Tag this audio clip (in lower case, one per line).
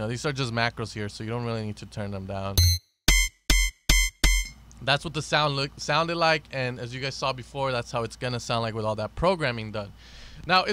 electronic music
music
speech